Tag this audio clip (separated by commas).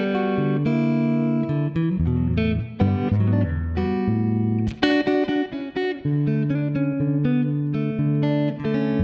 Musical instrument, playing electric guitar, Music, Plucked string instrument, Guitar, Electric guitar